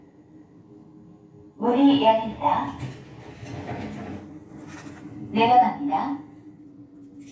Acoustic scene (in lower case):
elevator